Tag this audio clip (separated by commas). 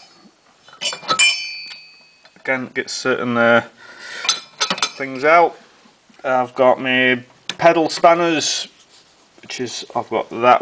Speech, Tools